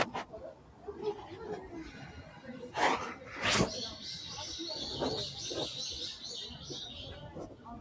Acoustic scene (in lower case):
residential area